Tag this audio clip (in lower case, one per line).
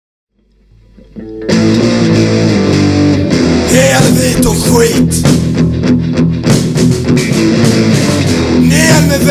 rapping
music